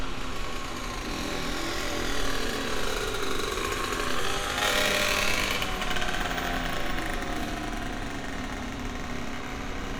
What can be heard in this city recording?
engine of unclear size